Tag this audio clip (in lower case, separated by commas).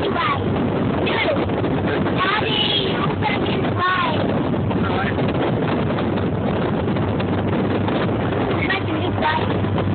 sailing ship, speech